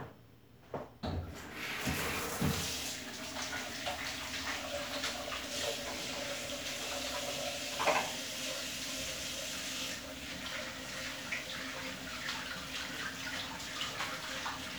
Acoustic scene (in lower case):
restroom